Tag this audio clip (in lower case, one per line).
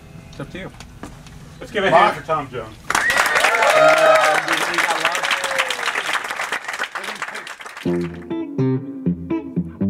music
speech